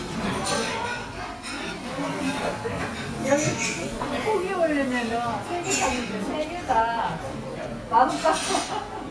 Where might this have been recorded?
in a restaurant